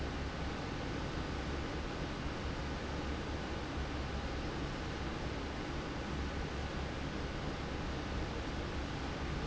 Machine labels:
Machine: fan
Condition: normal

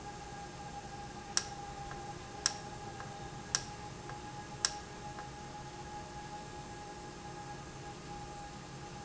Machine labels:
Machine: valve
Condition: normal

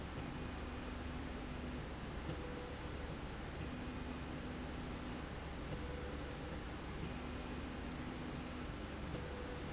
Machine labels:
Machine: slide rail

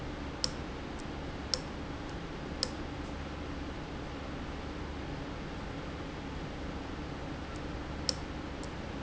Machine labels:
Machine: valve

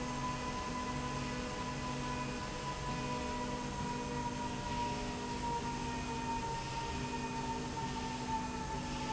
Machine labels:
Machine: slide rail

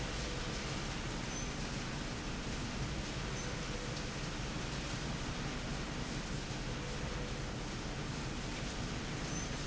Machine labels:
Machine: slide rail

